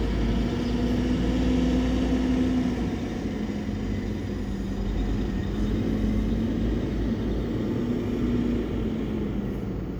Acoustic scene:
street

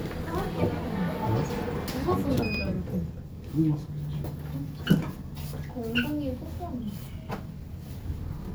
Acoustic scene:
elevator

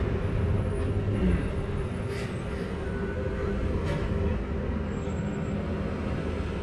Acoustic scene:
bus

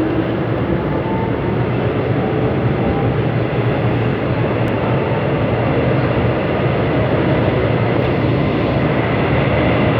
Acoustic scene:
subway train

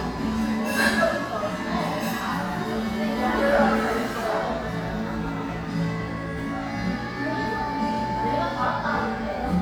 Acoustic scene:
crowded indoor space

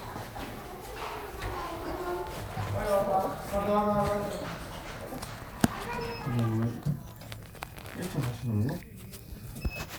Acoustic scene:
elevator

